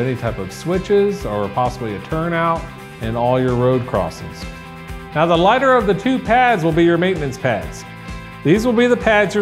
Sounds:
Music, Speech

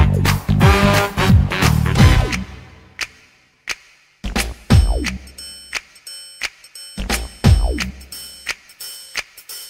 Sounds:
Rhythm and blues, Music

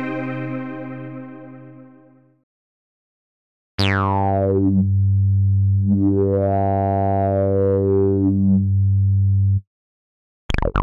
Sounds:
Sampler, Music

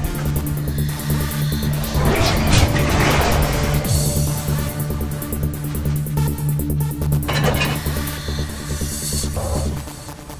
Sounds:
Music

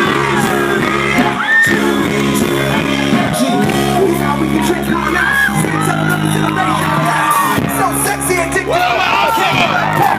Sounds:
Music, Crowd, Speech

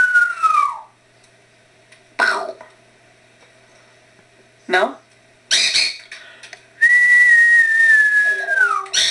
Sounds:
Speech

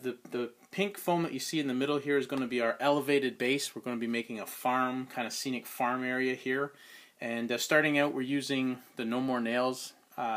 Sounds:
Speech

